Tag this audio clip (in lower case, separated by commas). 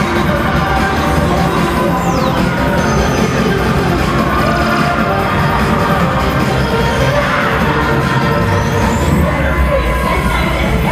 music, cheering, inside a public space